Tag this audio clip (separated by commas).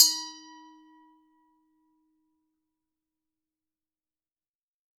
Glass